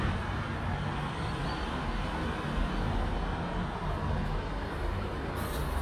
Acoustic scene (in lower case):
street